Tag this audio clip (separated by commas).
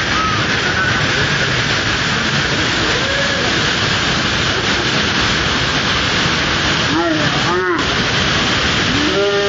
Waterfall